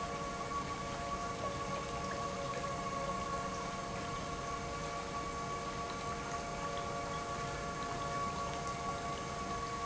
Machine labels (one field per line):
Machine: pump